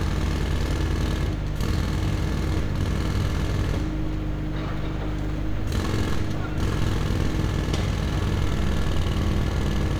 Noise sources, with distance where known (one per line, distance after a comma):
jackhammer